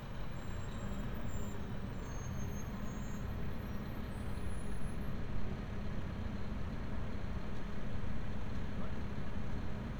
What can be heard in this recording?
engine of unclear size